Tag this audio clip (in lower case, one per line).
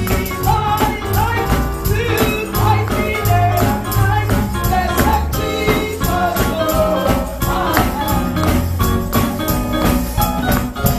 female singing
music